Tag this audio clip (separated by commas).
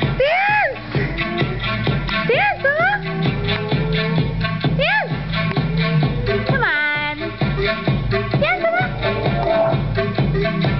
Music, Speech